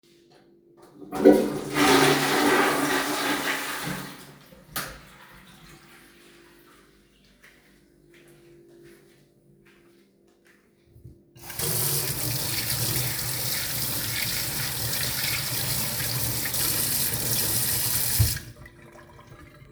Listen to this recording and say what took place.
I flush the toilet, I turn of the light and walk towards the sink and turn on the water and wash my hands.